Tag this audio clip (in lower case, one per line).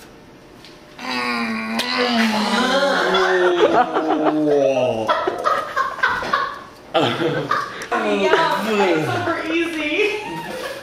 speech
inside a small room